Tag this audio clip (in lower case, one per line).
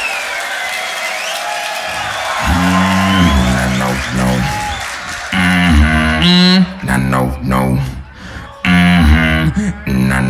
beat boxing